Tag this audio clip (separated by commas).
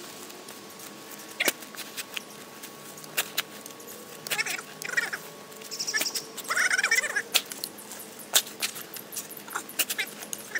outside, rural or natural